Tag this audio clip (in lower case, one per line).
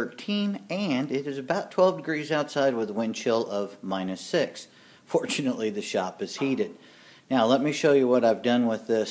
speech